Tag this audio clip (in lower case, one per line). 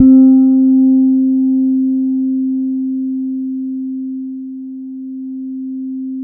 plucked string instrument
musical instrument
bass guitar
guitar
music